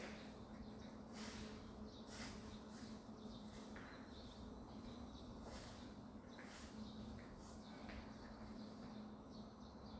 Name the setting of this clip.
residential area